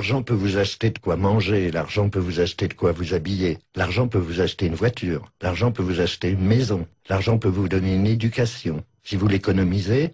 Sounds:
Speech

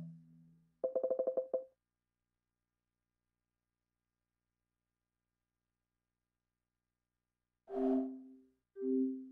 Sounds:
Music

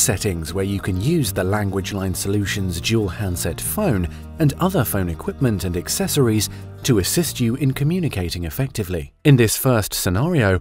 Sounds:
Music, Speech

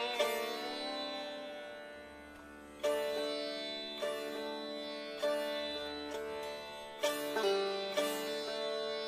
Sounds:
Sitar, Music

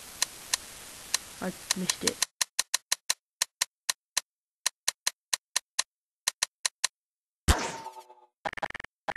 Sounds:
outside, urban or man-made, Speech

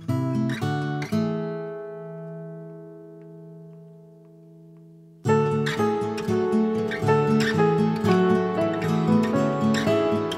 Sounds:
Acoustic guitar, Music

